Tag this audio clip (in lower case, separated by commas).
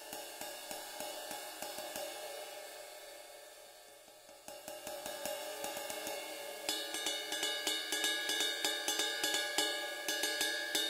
music, cymbal, playing cymbal